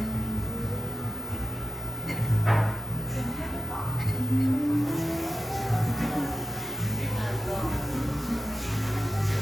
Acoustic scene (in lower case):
cafe